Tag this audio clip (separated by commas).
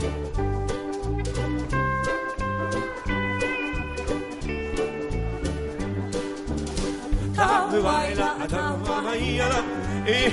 Music